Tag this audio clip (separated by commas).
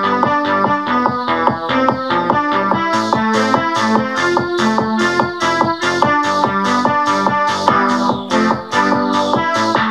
Music